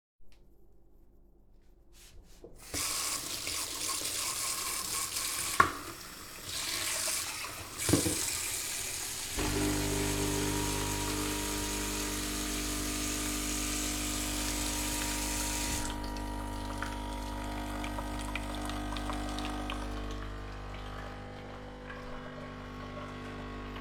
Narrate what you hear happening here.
Water is running before the coffee machine starts. The water stops while the coffee machine continues operating.